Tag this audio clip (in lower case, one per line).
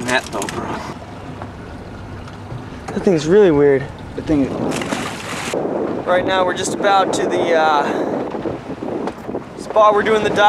outside, rural or natural
speech